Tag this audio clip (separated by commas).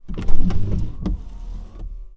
Vehicle, Motor vehicle (road), Car